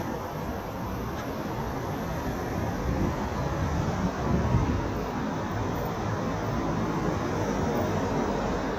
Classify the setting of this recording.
street